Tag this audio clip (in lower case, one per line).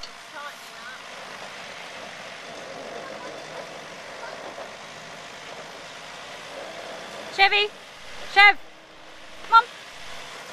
outside, rural or natural
car
speech
vehicle